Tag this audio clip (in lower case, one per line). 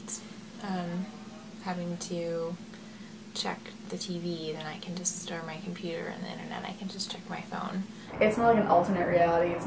speech
inside a small room